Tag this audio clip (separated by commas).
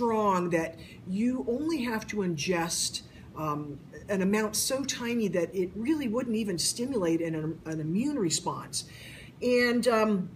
Speech